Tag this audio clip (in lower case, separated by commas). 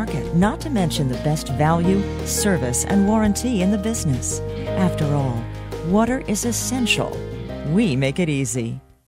music, speech